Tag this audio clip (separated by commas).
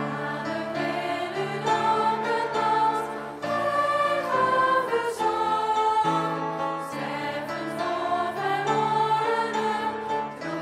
Choir, Singing, Music